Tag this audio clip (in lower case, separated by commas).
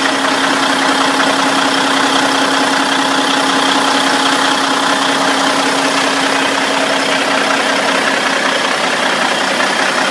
vehicle, truck